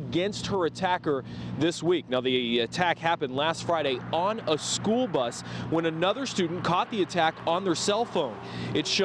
A man speaks with a vehicle driving in the background